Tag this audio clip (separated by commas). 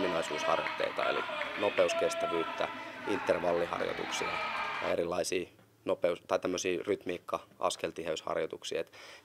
Speech